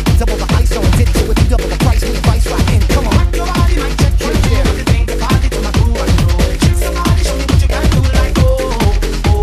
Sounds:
Music

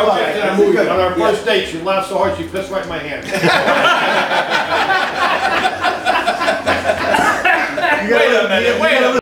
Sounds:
Speech

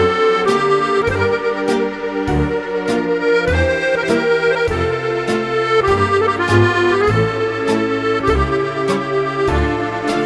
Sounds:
Music

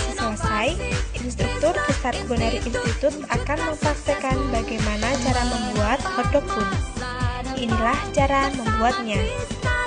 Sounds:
Speech, Music

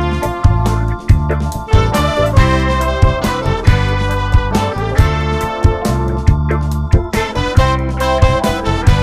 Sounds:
Music

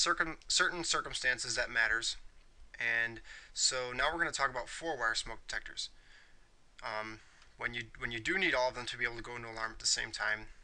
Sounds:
Speech

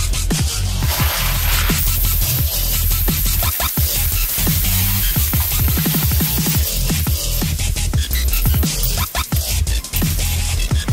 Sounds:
Music, Hiss

